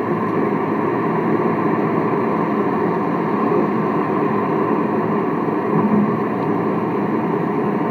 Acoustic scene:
car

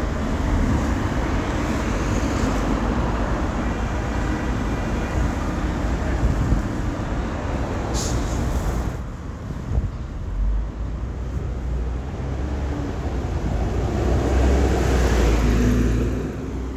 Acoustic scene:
street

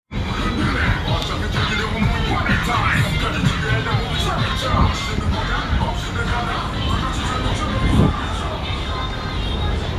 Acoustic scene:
street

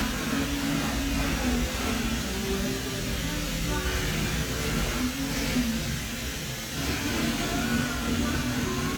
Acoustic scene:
cafe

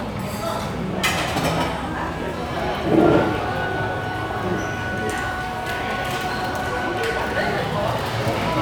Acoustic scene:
restaurant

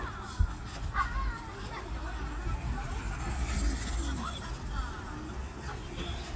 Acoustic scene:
park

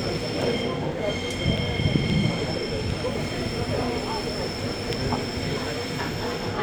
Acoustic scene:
subway train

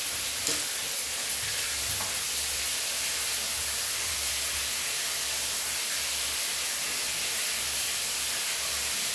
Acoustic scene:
restroom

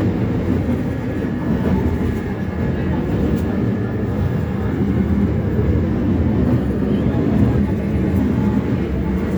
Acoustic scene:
subway train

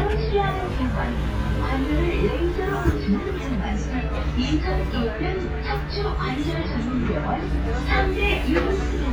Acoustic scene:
bus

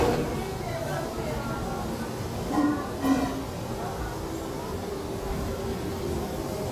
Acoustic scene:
restaurant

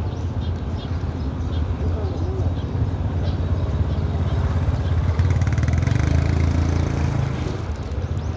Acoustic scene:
residential area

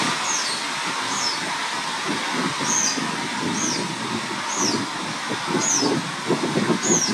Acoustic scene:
park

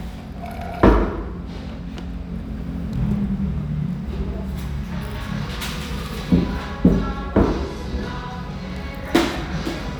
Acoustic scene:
restaurant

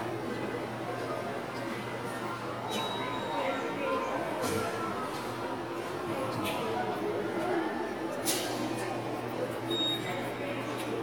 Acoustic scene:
subway station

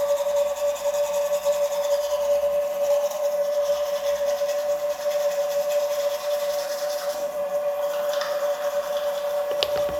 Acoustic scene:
restroom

